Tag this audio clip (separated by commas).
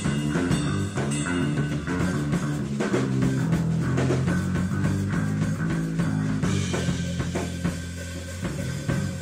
Psychedelic rock, Rimshot, Music, Drum